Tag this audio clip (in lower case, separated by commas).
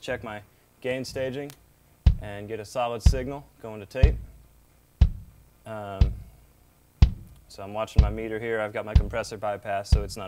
speech